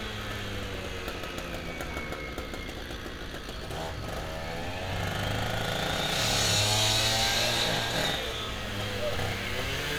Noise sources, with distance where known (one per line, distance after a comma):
chainsaw, near